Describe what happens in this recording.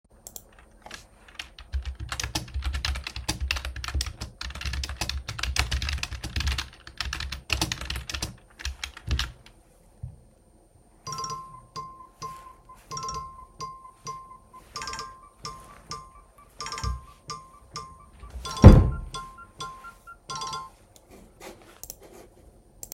I typed on the keyboard and my phone rang. While the phone was still ringing, I stood up from my seat(accidentally moving my chair) and then closed the wardrobe.